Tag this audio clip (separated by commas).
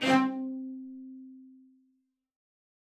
Music, Bowed string instrument, Musical instrument